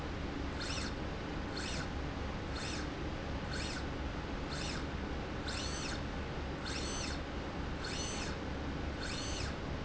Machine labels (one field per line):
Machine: slide rail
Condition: normal